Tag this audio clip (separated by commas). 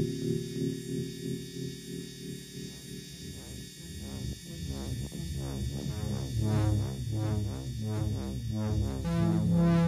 Music